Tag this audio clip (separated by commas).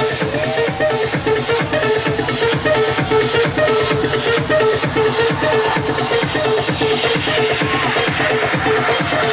Music, Musical instrument, Electronica